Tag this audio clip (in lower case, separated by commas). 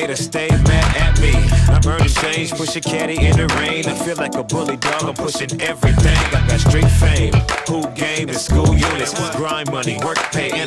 music, dance music